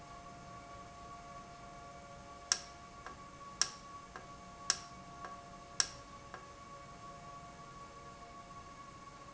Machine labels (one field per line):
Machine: valve